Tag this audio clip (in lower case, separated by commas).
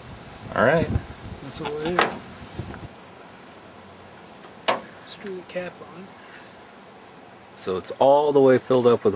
speech